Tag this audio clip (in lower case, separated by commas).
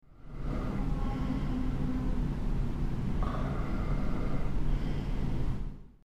breathing, vehicle, train, rail transport, respiratory sounds